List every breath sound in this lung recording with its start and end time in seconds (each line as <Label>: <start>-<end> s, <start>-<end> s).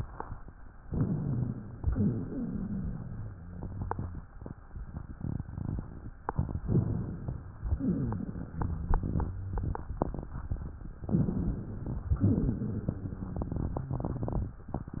Inhalation: 0.82-1.77 s, 6.64-7.53 s, 11.10-12.14 s
Exhalation: 1.92-3.38 s, 7.68-9.36 s, 12.22-14.63 s
Wheeze: 1.92-4.23 s, 7.68-9.75 s, 12.22-14.63 s
Rhonchi: 0.82-1.77 s